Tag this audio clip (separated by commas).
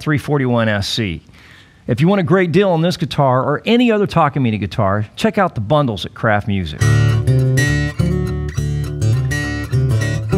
Speech, Musical instrument, Electric guitar, Guitar, Strum, Music, Plucked string instrument